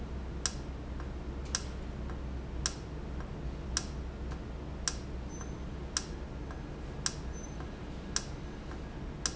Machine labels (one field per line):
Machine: valve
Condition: normal